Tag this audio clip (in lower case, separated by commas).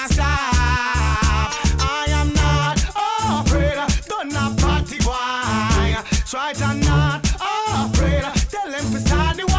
reggae, music